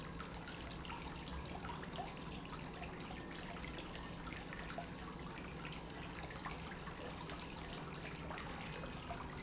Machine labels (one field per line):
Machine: pump